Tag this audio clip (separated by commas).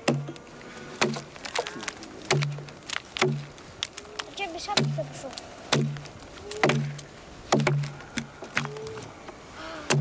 Speech